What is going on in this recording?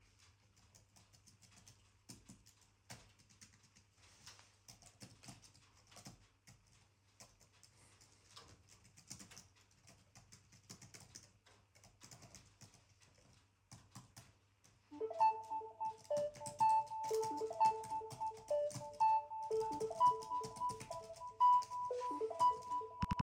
I started typing on the keyboard of MacBooks. During the typing activity a phone notification sound occurred. The phone ringing overlapped with the typing sounds.